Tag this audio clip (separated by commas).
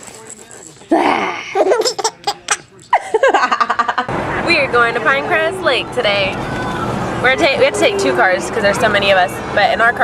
Speech, Music, Baby laughter